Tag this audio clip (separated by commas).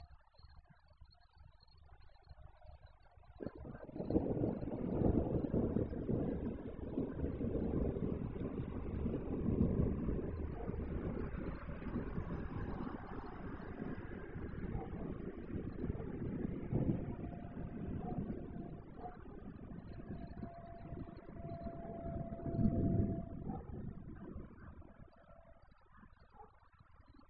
Thunder, Thunderstorm